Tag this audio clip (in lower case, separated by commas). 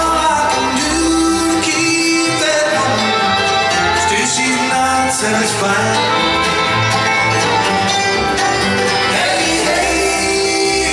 bluegrass, music, country